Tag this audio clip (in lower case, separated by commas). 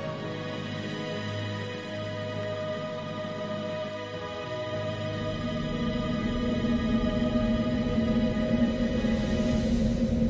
outside, rural or natural, music